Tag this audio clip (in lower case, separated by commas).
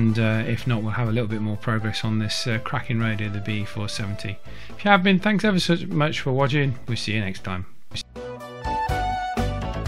police radio chatter